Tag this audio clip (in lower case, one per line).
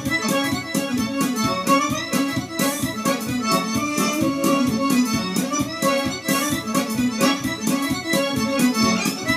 music
musical instrument